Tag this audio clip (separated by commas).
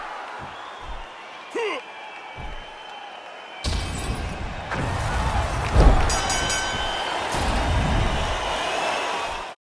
Smash